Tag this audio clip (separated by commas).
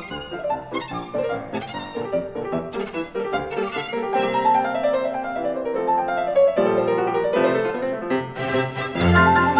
Musical instrument, Music, fiddle